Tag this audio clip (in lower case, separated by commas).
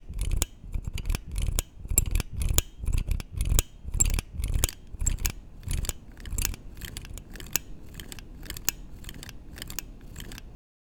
mechanisms